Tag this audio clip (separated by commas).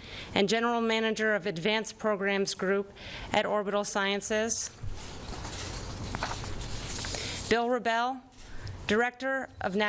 Speech